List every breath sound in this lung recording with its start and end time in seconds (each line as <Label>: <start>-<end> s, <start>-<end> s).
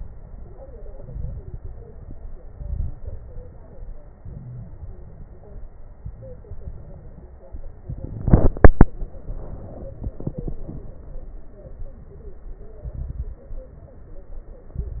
Inhalation: 0.97-1.55 s, 2.45-3.04 s, 4.18-4.77 s, 5.95-6.53 s, 12.85-13.47 s, 14.69-15.00 s
Exhalation: 1.58-2.43 s, 3.08-4.03 s, 4.79-5.74 s, 6.58-7.45 s, 11.65-12.38 s, 13.51-14.24 s
Crackles: 0.97-1.55 s, 1.58-2.43 s, 2.45-3.04 s, 3.08-4.03 s, 4.18-4.77 s, 4.79-5.74 s, 5.95-6.53 s, 6.58-7.45 s, 11.65-12.38 s, 12.85-13.47 s, 13.51-14.24 s, 14.69-15.00 s